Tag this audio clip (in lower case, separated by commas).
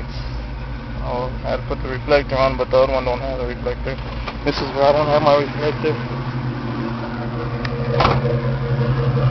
car, vehicle, motor vehicle (road), speech